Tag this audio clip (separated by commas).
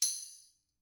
Music, Musical instrument, Percussion, Tambourine